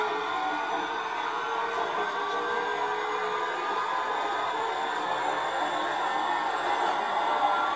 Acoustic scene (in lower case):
subway train